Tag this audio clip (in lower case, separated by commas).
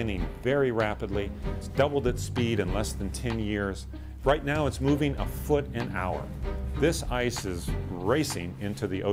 speech, music